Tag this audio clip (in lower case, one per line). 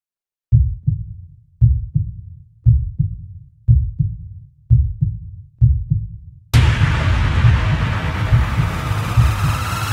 heart murmur
electronic music
sampler
music